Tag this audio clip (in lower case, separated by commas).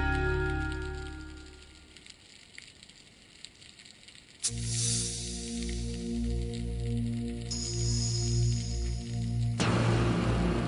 music